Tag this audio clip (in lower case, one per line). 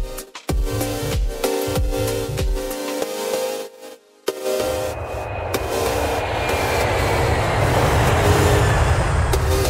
airplane